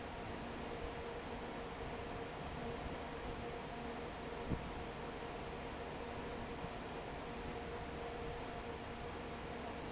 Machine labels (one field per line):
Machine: fan